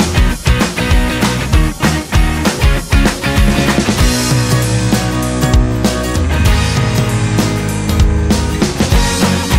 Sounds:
Music

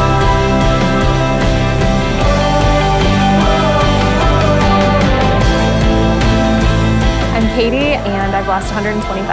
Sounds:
Music, Speech

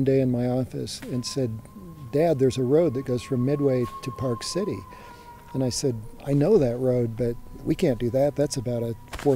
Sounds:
Speech

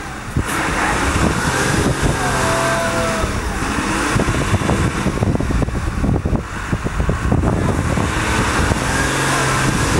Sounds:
Vehicle, Speech, Truck

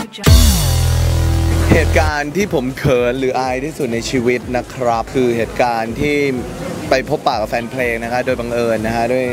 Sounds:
Music, Speech

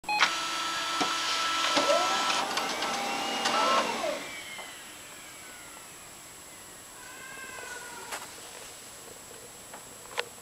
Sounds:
printer printing, Printer

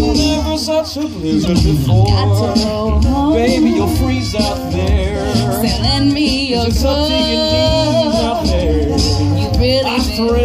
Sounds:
Country, outside, urban or man-made, Singing, Music

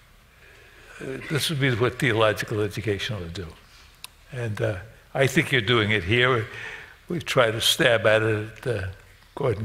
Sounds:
Speech

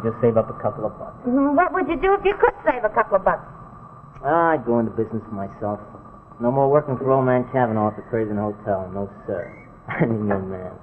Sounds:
inside a small room, Speech

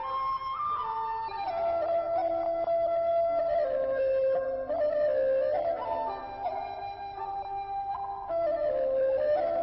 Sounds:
Music

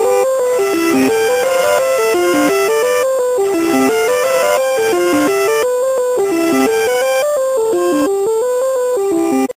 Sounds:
Music

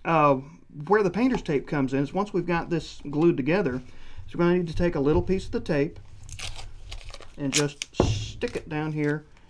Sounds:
inside a small room, Speech

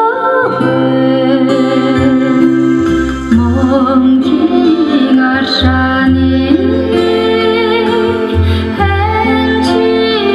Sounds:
Music

